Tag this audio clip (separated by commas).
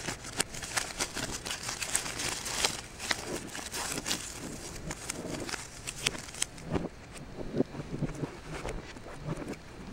ripping paper